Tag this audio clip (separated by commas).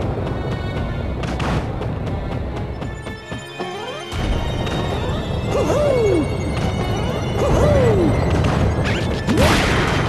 Music